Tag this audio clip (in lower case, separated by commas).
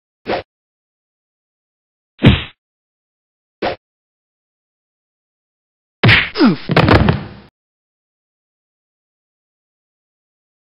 whoosh